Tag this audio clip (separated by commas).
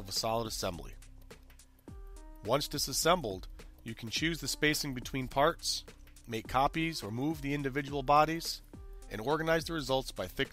Speech, Music